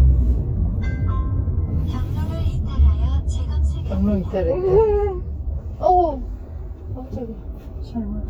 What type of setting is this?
car